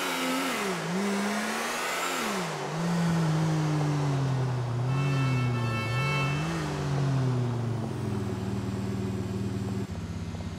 A motor vehicle engine is revving and a car horn blows twice